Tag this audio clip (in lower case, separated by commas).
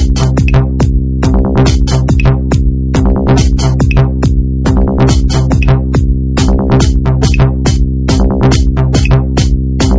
music